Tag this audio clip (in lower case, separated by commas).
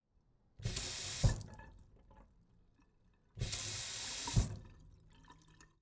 sink (filling or washing), domestic sounds